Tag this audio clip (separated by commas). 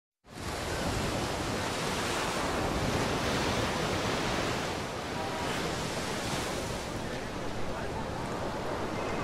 outside, rural or natural, Speech